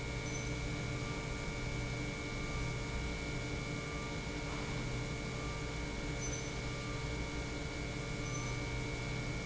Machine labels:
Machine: pump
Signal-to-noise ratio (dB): -6 dB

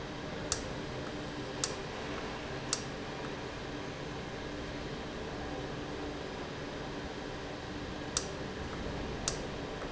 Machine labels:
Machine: valve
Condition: normal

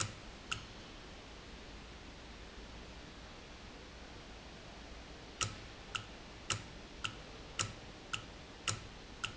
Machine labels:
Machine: valve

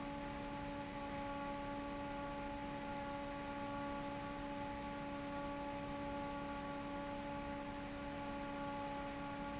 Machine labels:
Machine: fan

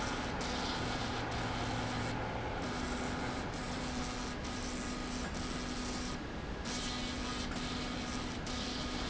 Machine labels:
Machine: slide rail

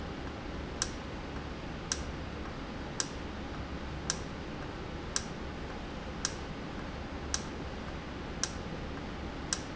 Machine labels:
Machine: valve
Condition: normal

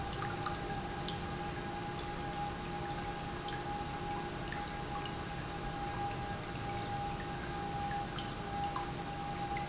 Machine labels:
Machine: pump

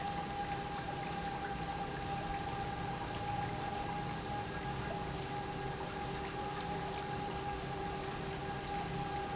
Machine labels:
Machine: pump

